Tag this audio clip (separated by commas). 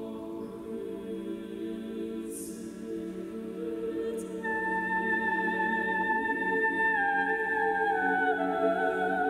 Female singing, Music, Choir